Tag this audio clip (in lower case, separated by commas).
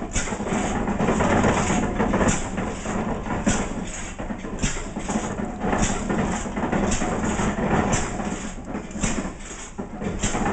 engine